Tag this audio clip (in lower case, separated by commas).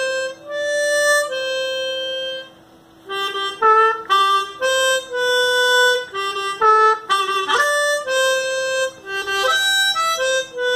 playing harmonica